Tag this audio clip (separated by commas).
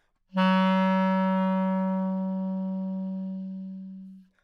woodwind instrument, Music, Musical instrument